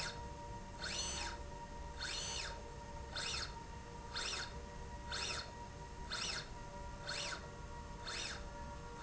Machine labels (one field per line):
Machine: slide rail